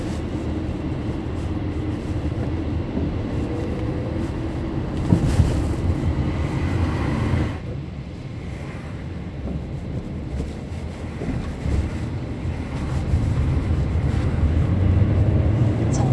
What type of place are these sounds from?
car